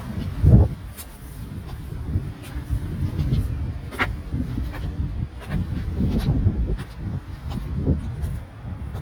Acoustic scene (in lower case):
residential area